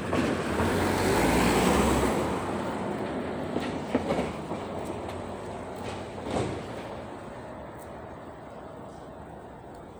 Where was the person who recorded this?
in a residential area